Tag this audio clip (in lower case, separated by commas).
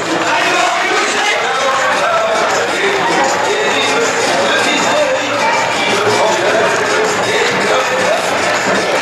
music